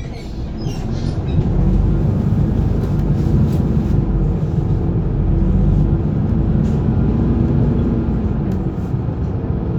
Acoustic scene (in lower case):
bus